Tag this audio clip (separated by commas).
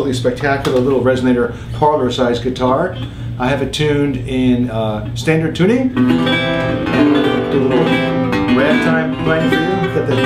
Guitar, Musical instrument, Speech, Music